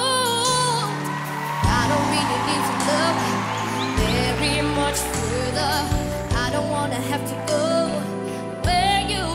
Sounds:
child singing

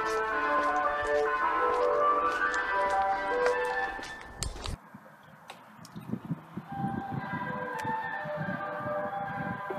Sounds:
ice cream truck
music

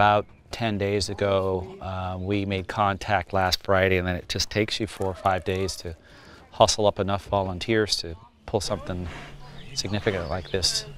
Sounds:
speech

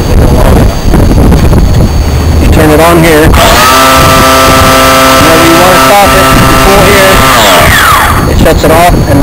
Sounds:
wind noise (microphone)
wind

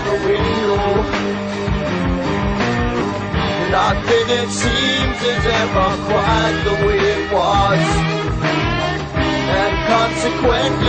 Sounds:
music

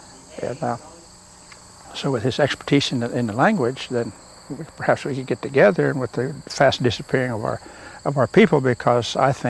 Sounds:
outside, rural or natural
speech

